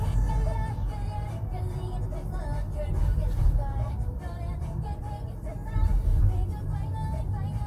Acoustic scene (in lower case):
car